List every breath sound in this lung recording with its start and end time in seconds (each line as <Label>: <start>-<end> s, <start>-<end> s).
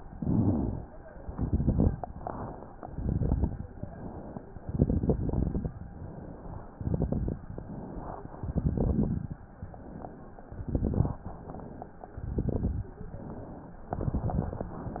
Inhalation: 0.00-0.88 s, 1.97-2.85 s, 3.72-4.60 s, 5.69-6.72 s, 7.46-8.32 s, 9.43-10.42 s, 11.22-12.12 s, 12.96-13.86 s
Exhalation: 1.12-2.00 s, 2.81-3.69 s, 4.61-5.64 s, 6.75-7.46 s, 8.41-9.32 s, 10.47-11.23 s, 12.17-12.93 s, 13.90-14.67 s
Crackles: 0.00-0.88 s, 1.12-2.00 s, 2.81-3.69 s, 4.61-5.64 s, 6.75-7.46 s, 8.41-9.32 s, 10.47-11.23 s, 12.17-12.93 s, 13.90-14.67 s